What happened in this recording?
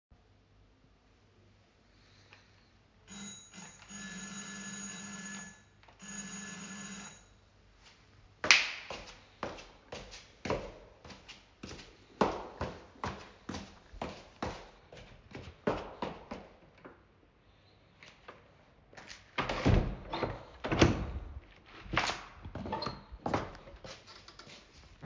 The doorbell rang. I walked towards the door and opened and closed it while holding the phone.